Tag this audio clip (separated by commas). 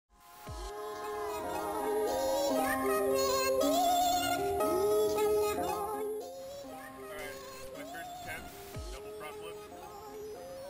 Speech, Music